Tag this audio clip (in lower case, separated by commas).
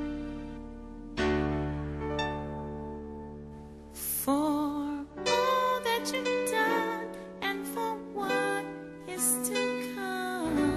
lullaby, music